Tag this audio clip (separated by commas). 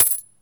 Coin (dropping), Domestic sounds